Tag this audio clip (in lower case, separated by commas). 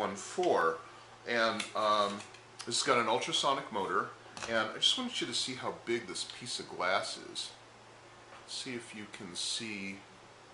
speech